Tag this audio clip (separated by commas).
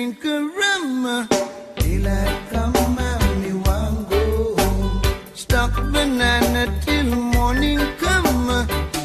Music